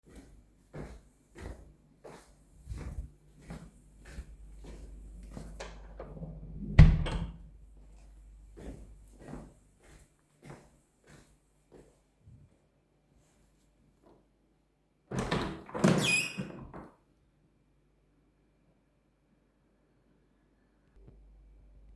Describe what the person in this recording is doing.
A person walk to a door closes it and then opens a window.